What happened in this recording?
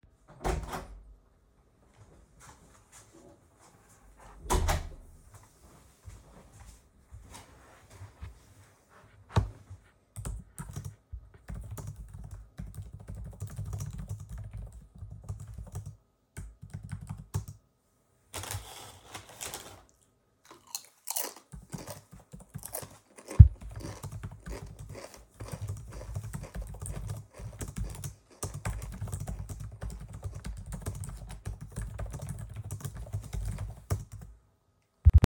I went to my room, started working on my laptop and had a snack.